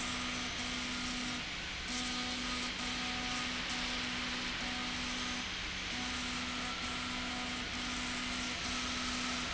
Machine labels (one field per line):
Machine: slide rail